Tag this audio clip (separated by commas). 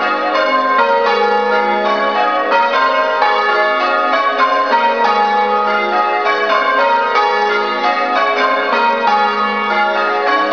Church bell